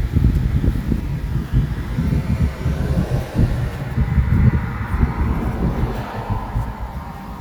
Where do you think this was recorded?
on a street